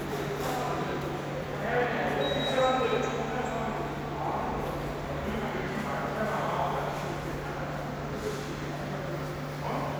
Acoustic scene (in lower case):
subway station